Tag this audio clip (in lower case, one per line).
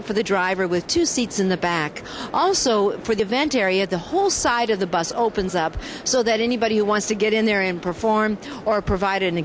speech